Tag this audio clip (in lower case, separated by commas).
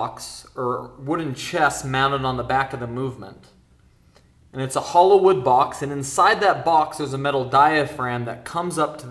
speech